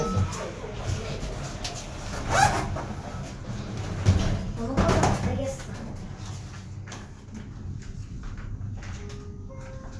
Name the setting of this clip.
elevator